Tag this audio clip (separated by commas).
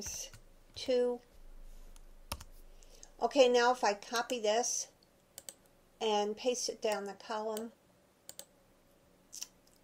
Computer keyboard, Speech